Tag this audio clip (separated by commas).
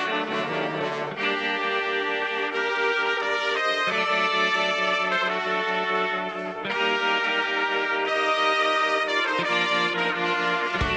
Trombone, Music